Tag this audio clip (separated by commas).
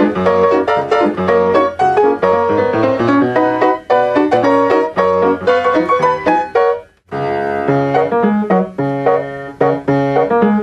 Music